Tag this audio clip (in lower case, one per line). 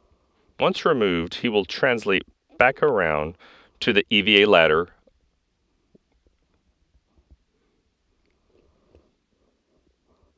speech